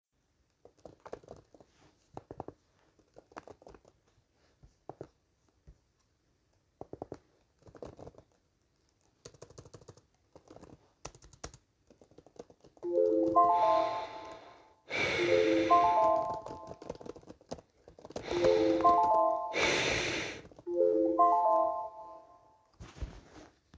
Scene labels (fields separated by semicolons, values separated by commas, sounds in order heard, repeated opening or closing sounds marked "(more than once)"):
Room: office; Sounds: keyboard typing, phone ringing